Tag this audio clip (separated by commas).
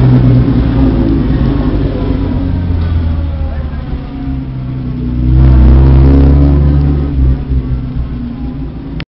Speech